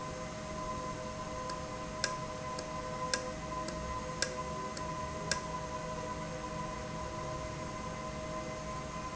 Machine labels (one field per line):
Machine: valve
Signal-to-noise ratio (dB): -6 dB